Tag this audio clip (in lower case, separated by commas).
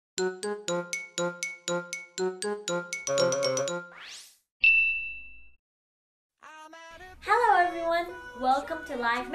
music, speech, inside a small room